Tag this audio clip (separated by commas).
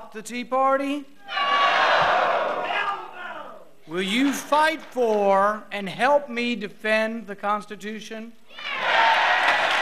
Speech, Male speech, monologue